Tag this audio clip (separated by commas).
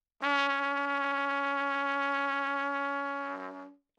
Trumpet, Music, Brass instrument, Musical instrument